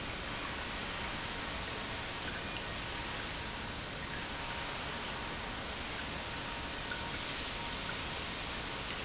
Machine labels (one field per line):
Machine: pump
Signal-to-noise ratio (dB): -6 dB